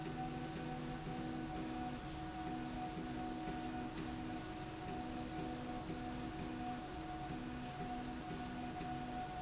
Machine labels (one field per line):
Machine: slide rail